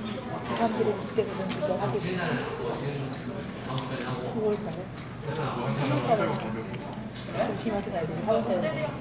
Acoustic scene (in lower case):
crowded indoor space